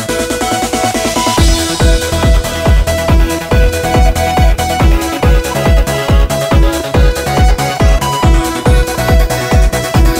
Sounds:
music

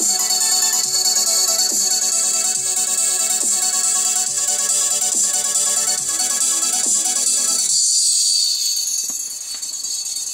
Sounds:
music

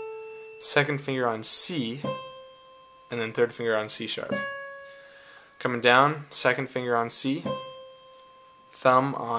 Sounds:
harmonic, music, speech

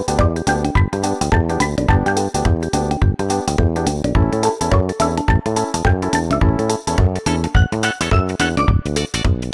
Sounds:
jazz, music

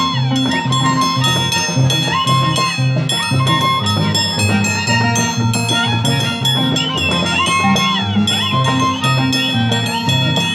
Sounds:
musical instrument, music, violin

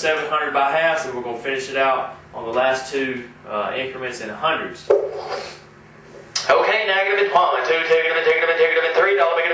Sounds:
speech

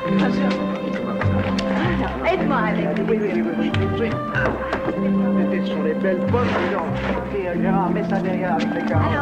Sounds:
music, speech

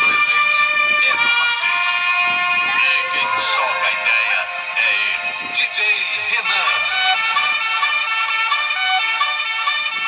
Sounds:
speech, music

